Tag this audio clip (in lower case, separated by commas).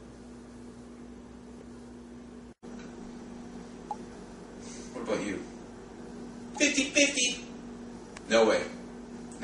speech